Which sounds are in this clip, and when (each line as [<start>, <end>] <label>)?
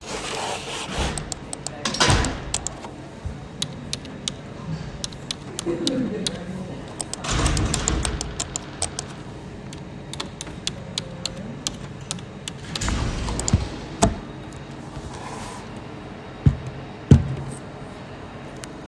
[3.51, 6.35] keyboard typing
[10.03, 13.40] keyboard typing